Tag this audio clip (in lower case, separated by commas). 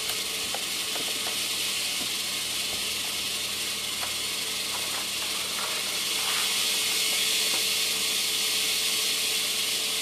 snake